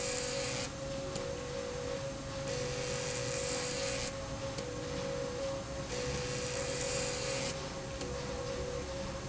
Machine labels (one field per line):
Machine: slide rail